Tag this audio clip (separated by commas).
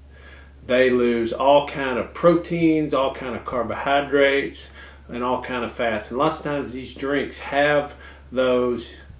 Speech